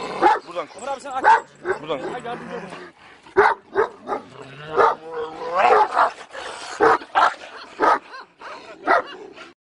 A dog barks and people speak